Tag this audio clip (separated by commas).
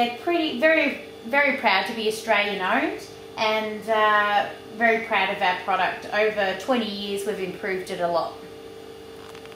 Speech